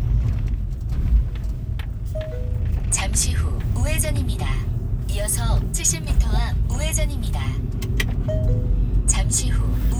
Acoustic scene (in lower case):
car